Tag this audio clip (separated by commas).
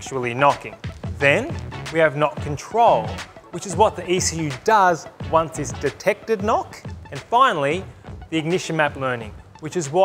Music, Speech